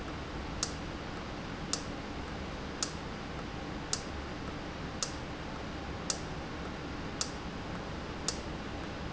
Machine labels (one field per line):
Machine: valve